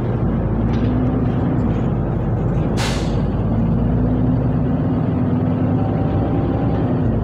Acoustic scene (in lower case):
bus